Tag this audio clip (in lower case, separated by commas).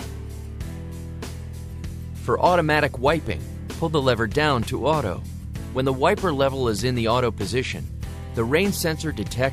speech, music